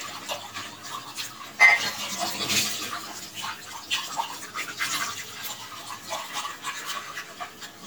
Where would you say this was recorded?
in a kitchen